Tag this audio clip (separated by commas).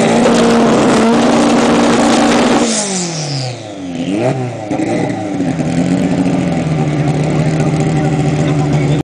Vehicle, vroom, revving, Car